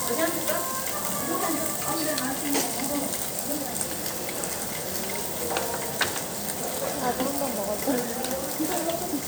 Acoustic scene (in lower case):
restaurant